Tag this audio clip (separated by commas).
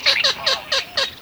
bird call, Bird, livestock, Fowl, Wild animals, Animal